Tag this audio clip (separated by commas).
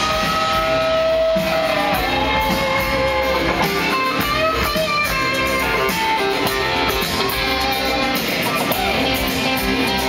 Rock and roll